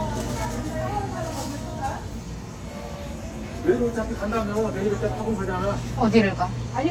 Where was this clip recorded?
in a crowded indoor space